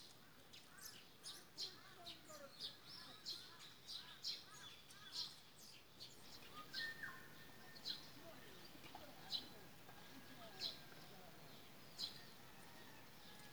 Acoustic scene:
park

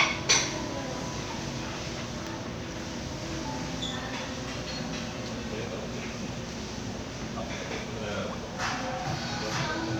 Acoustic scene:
crowded indoor space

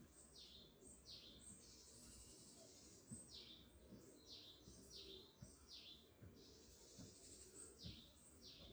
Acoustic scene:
park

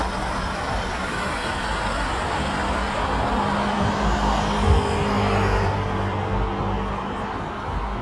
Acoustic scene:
street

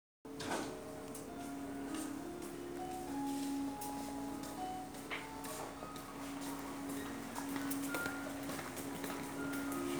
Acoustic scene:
crowded indoor space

